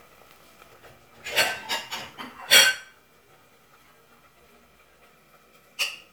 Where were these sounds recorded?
in a kitchen